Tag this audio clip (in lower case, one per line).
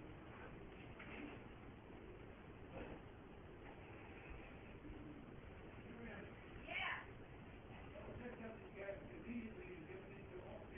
speech